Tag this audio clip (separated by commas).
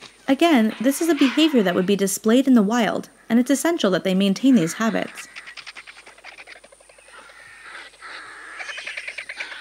Bird, Speech, outside, rural or natural, Wild animals